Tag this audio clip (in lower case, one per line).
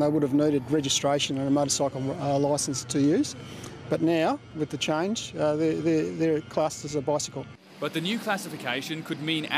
speech